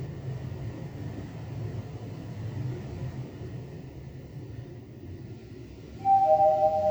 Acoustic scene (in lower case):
elevator